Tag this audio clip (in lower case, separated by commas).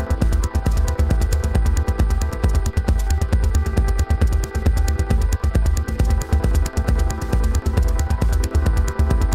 music